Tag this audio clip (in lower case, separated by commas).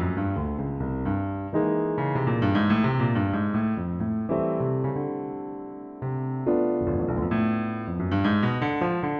keyboard (musical), piano, electric piano